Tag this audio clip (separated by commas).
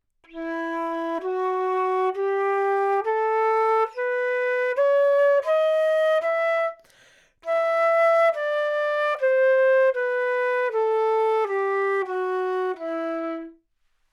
woodwind instrument, Musical instrument, Music